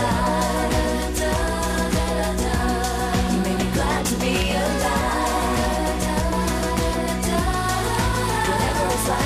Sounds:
Pop music, Music

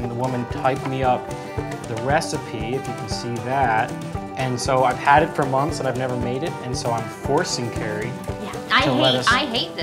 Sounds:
Speech, Music

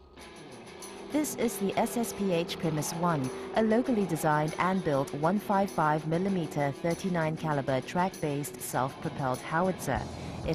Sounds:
Speech, Vehicle, Music

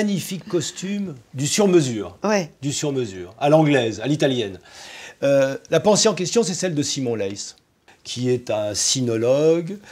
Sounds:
Speech

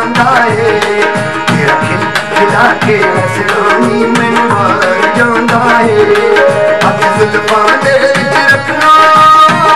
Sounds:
Music, Folk music

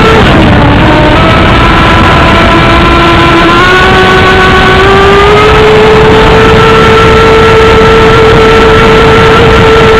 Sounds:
speedboat acceleration, Motorboat, Vehicle

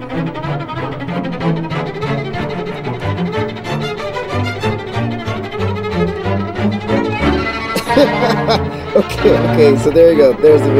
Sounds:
Cello

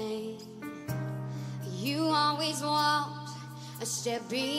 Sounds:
Music

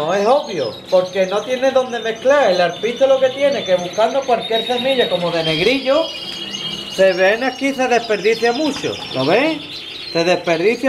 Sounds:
canary calling

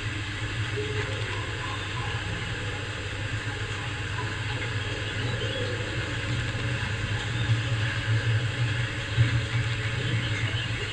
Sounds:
outside, rural or natural

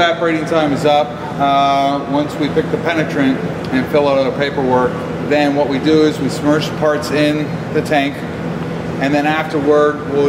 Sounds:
Speech

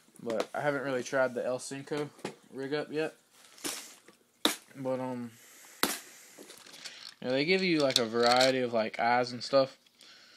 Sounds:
Speech

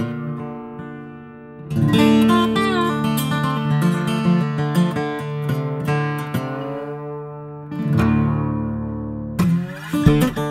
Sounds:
Plucked string instrument, playing acoustic guitar, Percussion, Music, Guitar, Acoustic guitar, Musical instrument

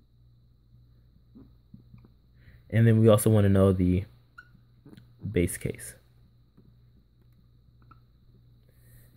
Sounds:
Speech

